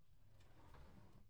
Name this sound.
wooden drawer opening